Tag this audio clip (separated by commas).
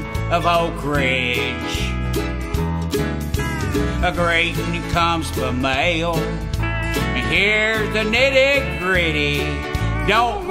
Funny music, Music, Country